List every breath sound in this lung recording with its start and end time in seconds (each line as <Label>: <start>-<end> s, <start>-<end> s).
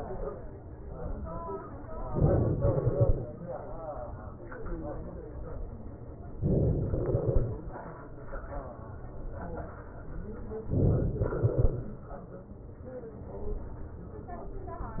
Inhalation: 2.08-2.67 s, 6.46-6.99 s, 10.68-11.24 s
Exhalation: 2.67-3.19 s, 6.99-8.21 s, 11.24-11.92 s
Crackles: 2.67-3.19 s, 6.99-8.21 s, 11.24-11.92 s